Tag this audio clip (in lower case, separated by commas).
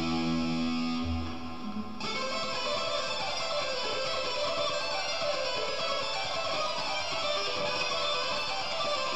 music, guitar, musical instrument, strum, acoustic guitar, plucked string instrument